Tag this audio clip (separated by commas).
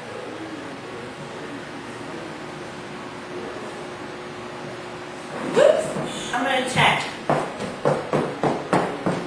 Speech